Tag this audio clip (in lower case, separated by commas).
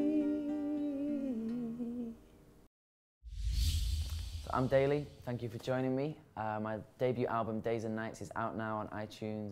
humming, speech, inside a small room, music